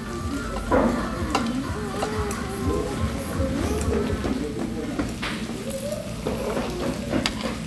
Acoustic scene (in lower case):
restaurant